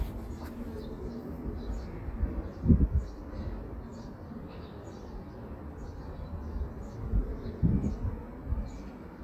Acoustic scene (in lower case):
residential area